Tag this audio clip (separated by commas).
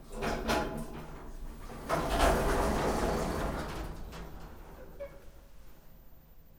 Sliding door, Domestic sounds, Door